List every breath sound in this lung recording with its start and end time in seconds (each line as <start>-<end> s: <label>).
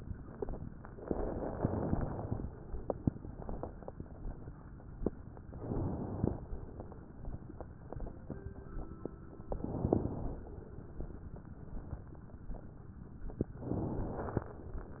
1.02-2.47 s: inhalation
5.56-6.49 s: inhalation
9.51-10.44 s: inhalation
13.60-14.54 s: inhalation